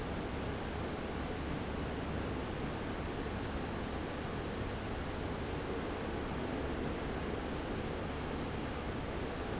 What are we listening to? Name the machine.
fan